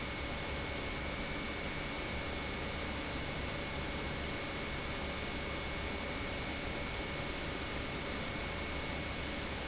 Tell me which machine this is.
pump